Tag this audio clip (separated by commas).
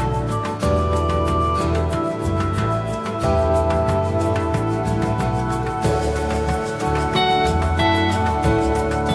Music